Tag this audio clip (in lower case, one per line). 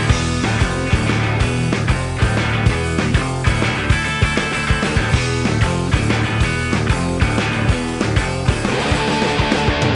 music